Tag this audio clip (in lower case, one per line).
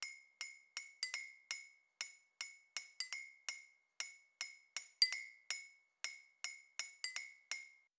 glass